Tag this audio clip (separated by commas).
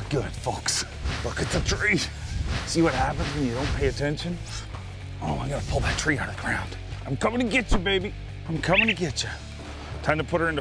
Music, Speech